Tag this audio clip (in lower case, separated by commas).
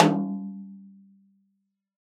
snare drum, music, drum, musical instrument, percussion